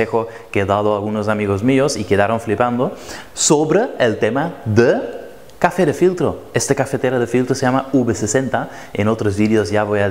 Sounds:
Speech

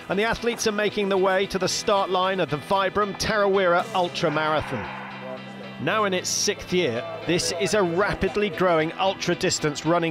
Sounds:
Music, Speech

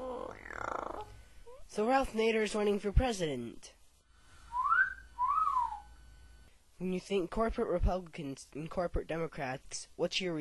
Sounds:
Whistling

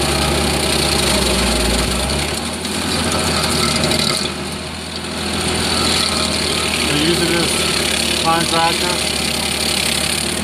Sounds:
Engine, Vehicle, Vibration

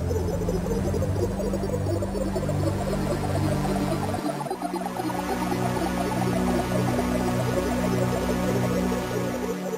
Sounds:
Music

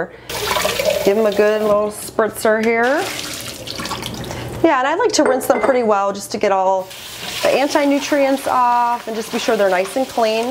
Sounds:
Speech, faucet, inside a small room, Sink (filling or washing)

